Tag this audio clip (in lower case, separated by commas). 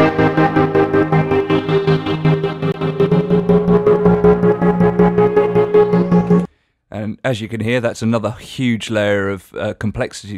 music, speech